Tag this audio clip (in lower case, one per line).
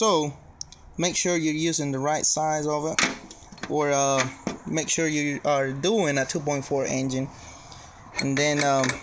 speech